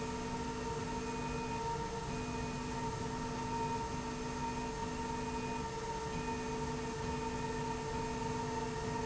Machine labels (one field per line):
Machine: slide rail